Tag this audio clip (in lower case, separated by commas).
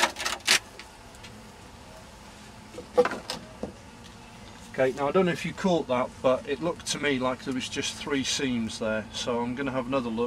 insect, bee or wasp, housefly